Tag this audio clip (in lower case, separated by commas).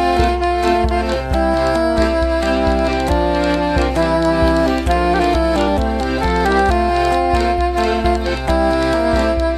music